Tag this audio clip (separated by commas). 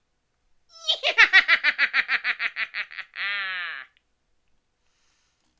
Human voice, Laughter